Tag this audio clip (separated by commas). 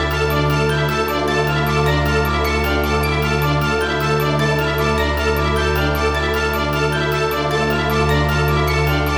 Scary music, Music